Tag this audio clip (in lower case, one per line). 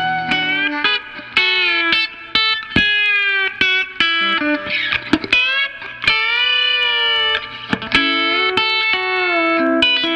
music